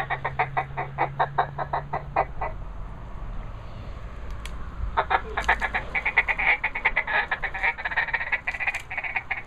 Ducks quacking